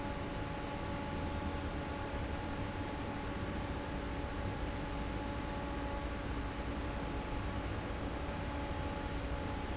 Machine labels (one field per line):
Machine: fan